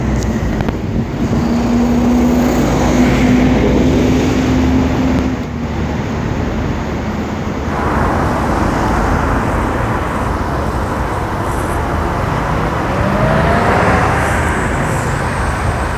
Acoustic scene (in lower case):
street